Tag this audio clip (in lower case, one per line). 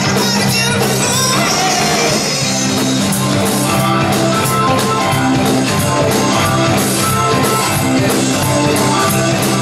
music